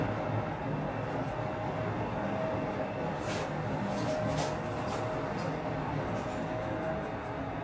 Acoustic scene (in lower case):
elevator